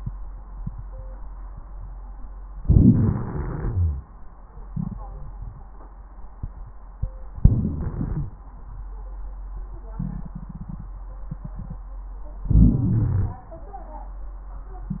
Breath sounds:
Inhalation: 2.61-4.04 s, 7.40-8.38 s, 12.46-13.44 s
Crackles: 12.46-13.44 s

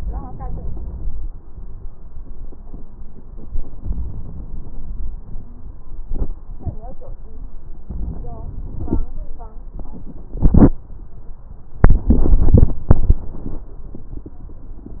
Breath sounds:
Inhalation: 0.00-1.77 s, 3.81-5.15 s, 7.83-9.02 s
Crackles: 7.88-9.05 s

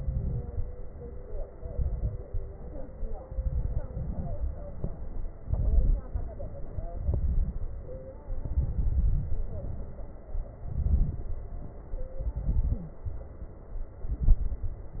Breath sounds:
Inhalation: 0.00-0.41 s, 1.56-2.22 s, 3.29-3.91 s, 5.43-6.04 s, 7.05-7.58 s, 8.44-9.48 s, 10.60-11.30 s, 12.33-12.96 s, 14.06-14.69 s
Exhalation: 0.51-1.46 s, 2.28-3.19 s, 3.91-4.79 s, 6.12-6.97 s, 7.60-8.40 s, 9.52-10.47 s, 11.31-12.23 s, 13.04-14.02 s
Crackles: 0.00-0.41 s, 0.51-1.46 s, 1.56-2.22 s, 2.28-3.19 s, 3.29-3.91 s, 3.91-4.79 s, 5.45-6.06 s, 6.12-6.97 s, 7.05-7.58 s, 7.60-8.40 s, 8.44-9.48 s, 9.52-10.47 s, 10.60-11.30 s, 11.31-12.23 s, 12.33-12.96 s, 14.06-14.69 s

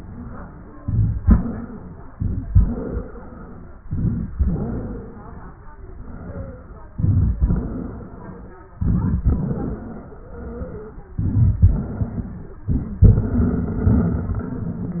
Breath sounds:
Inhalation: 0.78-1.18 s, 2.11-2.50 s, 3.88-4.27 s, 6.99-7.39 s, 8.80-9.25 s, 11.17-11.63 s, 12.71-13.05 s
Exhalation: 0.00-0.77 s, 1.19-2.06 s, 2.52-3.79 s, 4.39-5.65 s, 5.91-6.83 s, 7.45-8.61 s, 9.25-11.07 s, 11.65-12.61 s, 13.05-15.00 s
Wheeze: 0.00-0.77 s, 1.19-2.06 s, 2.52-3.79 s, 4.39-5.65 s, 5.91-6.83 s, 7.45-8.61 s, 9.25-11.07 s, 11.65-12.61 s, 13.05-15.00 s
Crackles: 0.78-1.18 s, 2.11-2.50 s, 3.88-4.27 s, 6.99-7.39 s, 8.80-9.25 s, 11.17-11.63 s, 12.71-13.05 s

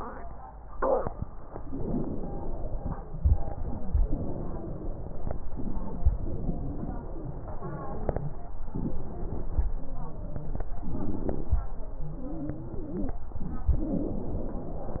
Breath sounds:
Inhalation: 1.50-3.00 s, 4.05-5.33 s, 6.09-7.41 s, 9.72-10.68 s, 12.05-13.21 s
Exhalation: 3.16-4.00 s, 5.45-6.10 s, 8.72-9.68 s, 10.76-11.72 s, 13.73-15.00 s
Wheeze: 1.48-3.00 s, 3.16-4.00 s, 4.05-5.33 s, 5.44-6.06 s, 6.09-7.41 s, 8.72-9.68 s, 9.72-10.68 s, 10.76-11.72 s, 12.05-13.21 s, 13.73-15.00 s

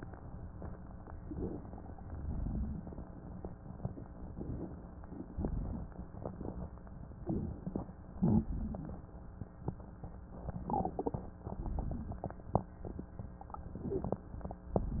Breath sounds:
Inhalation: 1.25-1.96 s, 4.31-4.80 s, 7.19-7.86 s, 10.57-11.39 s, 13.62-14.36 s
Exhalation: 2.07-2.96 s, 5.31-6.02 s, 8.16-9.01 s, 11.55-12.37 s

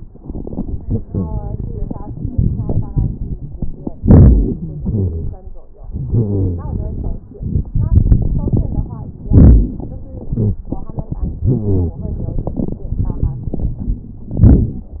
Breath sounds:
Wheeze: 4.04-5.36 s, 5.93-6.82 s, 9.33-9.72 s, 11.47-11.98 s

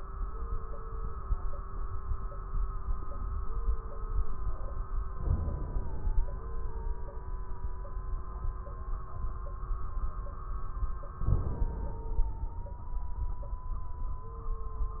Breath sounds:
Inhalation: 5.17-6.26 s, 11.19-12.52 s

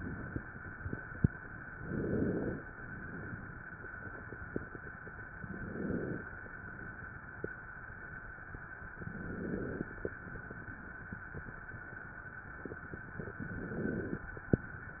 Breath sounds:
Inhalation: 1.70-2.58 s, 5.38-6.27 s, 8.91-9.89 s, 13.26-14.24 s
Exhalation: 2.58-3.60 s, 6.35-7.43 s, 10.09-11.07 s

